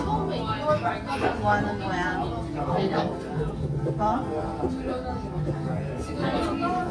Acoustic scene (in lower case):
crowded indoor space